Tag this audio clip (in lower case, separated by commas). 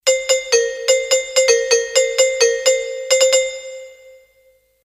door, doorbell, domestic sounds, alarm